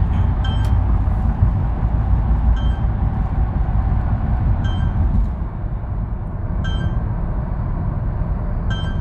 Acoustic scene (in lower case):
car